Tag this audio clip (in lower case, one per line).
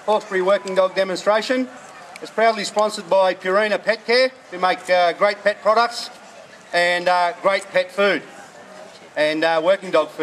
speech